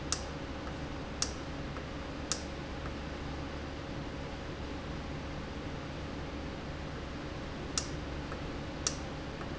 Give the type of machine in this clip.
valve